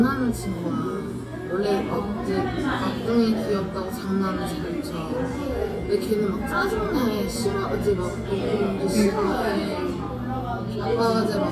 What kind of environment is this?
cafe